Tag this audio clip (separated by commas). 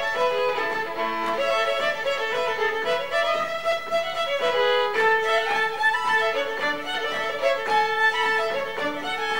Country, Music